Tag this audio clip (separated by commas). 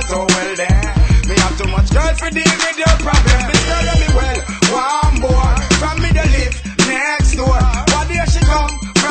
Afrobeat, Music